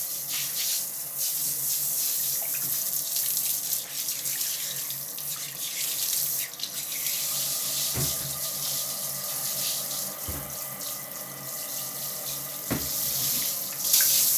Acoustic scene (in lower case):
restroom